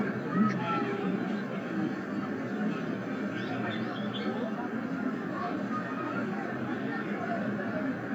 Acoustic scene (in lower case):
residential area